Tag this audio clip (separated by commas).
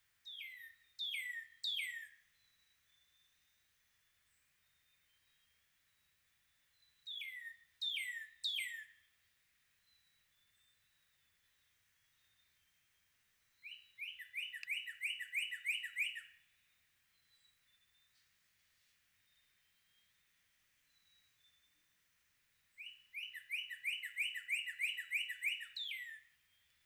Bird, Animal, tweet, Wild animals, bird call